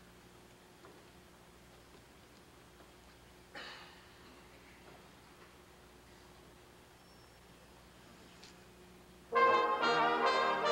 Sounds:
trombone, music

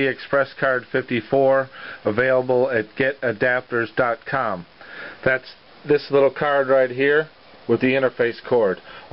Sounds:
speech

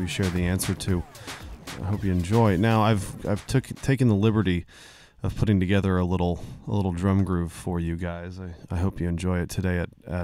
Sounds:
speech, music, musical instrument

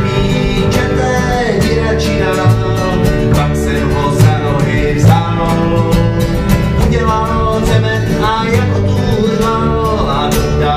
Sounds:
country, music

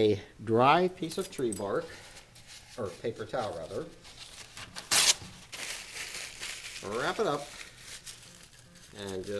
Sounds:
speech, inside a large room or hall

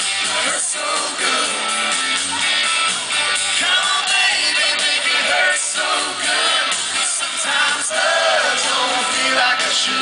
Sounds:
music

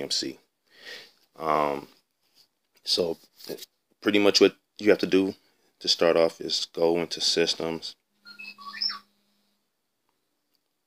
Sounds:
speech

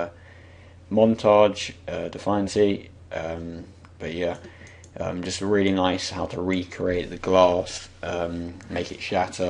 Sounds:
speech

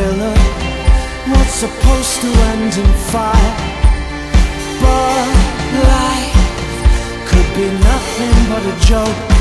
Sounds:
inside a large room or hall, music

